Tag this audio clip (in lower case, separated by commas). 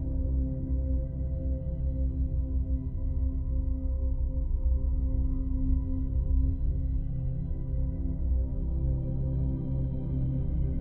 music